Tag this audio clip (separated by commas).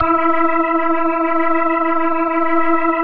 Musical instrument, Music, Keyboard (musical), Organ